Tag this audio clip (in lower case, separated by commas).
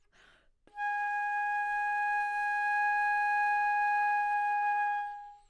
woodwind instrument, music, musical instrument